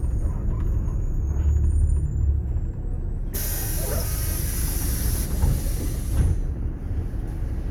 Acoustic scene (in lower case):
bus